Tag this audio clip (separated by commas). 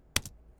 Domestic sounds, Typing